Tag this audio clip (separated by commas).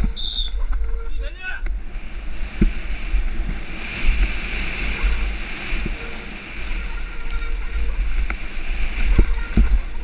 Speech